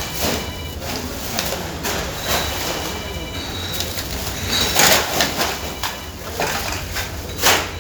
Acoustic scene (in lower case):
residential area